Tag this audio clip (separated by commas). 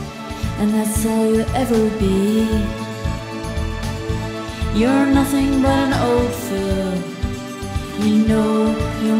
Music